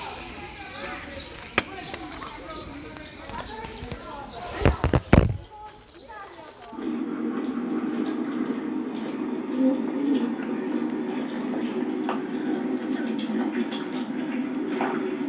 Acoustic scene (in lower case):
park